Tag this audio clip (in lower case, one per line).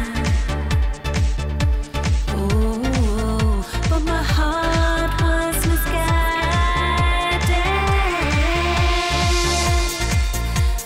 music